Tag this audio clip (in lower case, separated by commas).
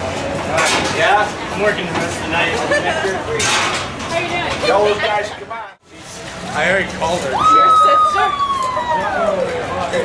speech